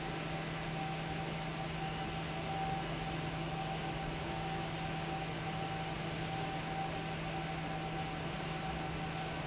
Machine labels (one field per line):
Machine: fan